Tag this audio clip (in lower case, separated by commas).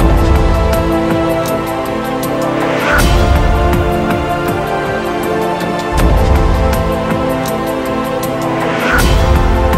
music